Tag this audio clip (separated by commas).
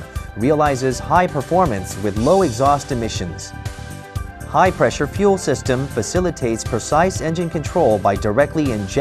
Speech, Music